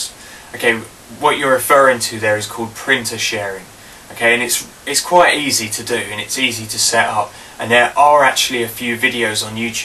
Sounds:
Speech

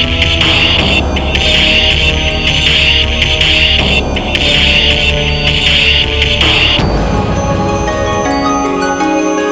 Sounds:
Scary music, Music

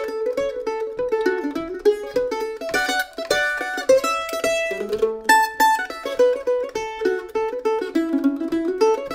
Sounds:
playing mandolin

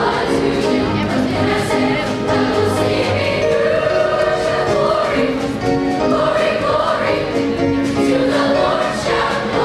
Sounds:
Music

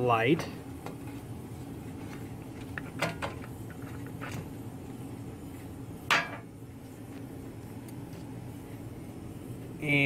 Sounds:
Speech, inside a small room

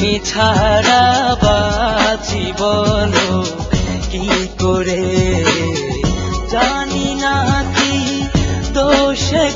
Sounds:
Sad music, Music

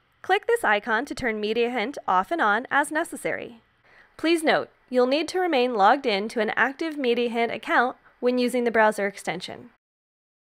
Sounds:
Speech

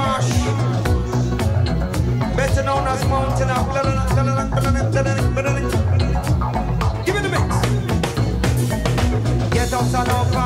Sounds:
Speech, Music

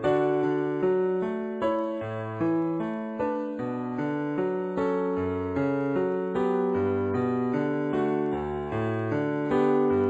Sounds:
Music

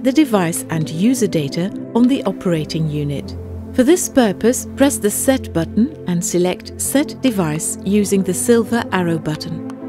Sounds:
Music, Speech

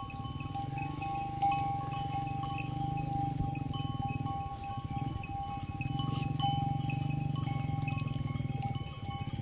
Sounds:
bovinae cowbell

